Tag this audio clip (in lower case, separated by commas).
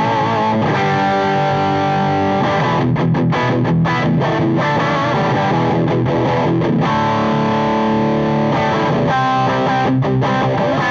electric guitar, plucked string instrument, strum, guitar, music, musical instrument